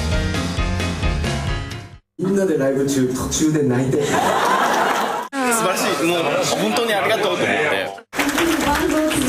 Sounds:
Speech, Music, Funk, Pop music

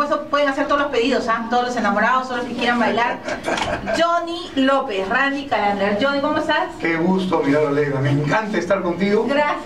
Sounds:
Speech

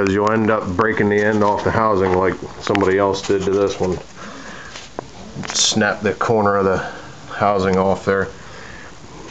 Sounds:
Speech

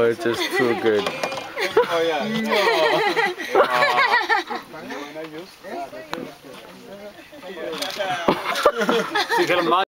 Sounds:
Speech

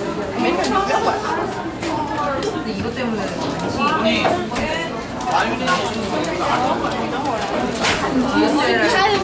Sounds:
Speech

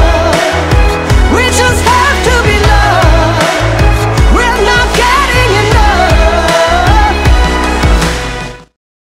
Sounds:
Music, Pop music

